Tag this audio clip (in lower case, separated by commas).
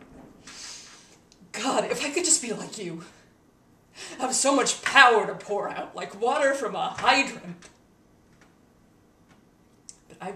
narration, speech